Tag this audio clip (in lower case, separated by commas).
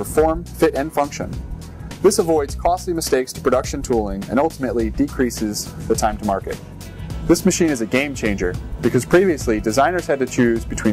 speech, music